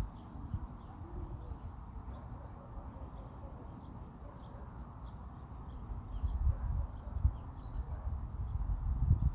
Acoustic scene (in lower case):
park